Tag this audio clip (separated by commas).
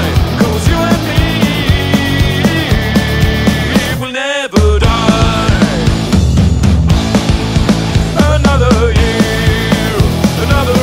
Music